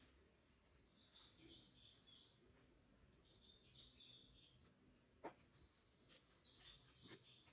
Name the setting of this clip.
park